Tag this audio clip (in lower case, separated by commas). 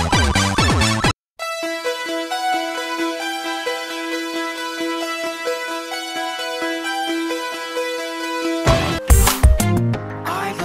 background music, music